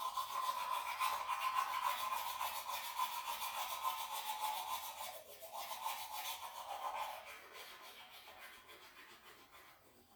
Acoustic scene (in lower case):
restroom